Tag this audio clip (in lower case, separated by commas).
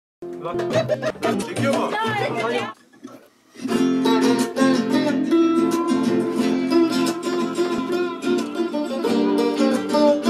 music, guitar, sitar, electric guitar, speech